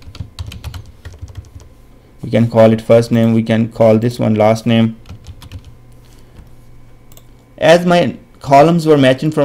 A man types on the computer and then speaks